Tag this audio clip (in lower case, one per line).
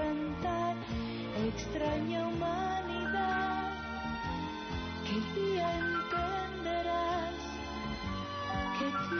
music